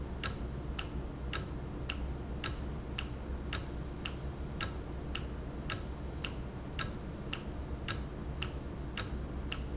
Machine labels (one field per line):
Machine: valve